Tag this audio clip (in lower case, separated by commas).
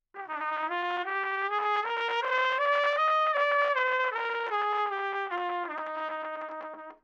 music, brass instrument, musical instrument, trumpet